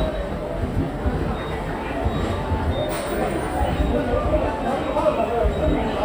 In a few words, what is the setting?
subway station